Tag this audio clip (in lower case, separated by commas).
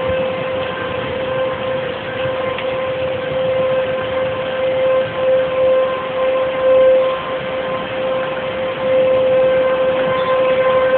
siren, vehicle